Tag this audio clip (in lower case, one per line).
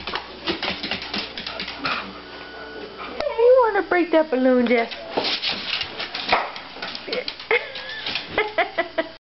speech